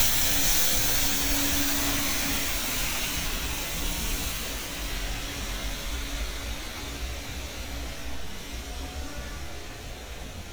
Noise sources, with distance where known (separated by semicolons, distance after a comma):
car horn, far